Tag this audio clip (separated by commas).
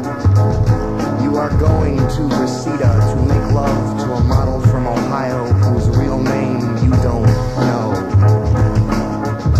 Music